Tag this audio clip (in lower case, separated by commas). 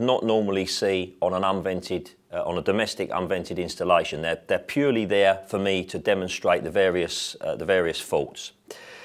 speech